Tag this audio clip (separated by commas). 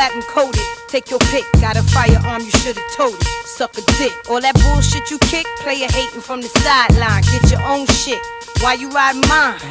Music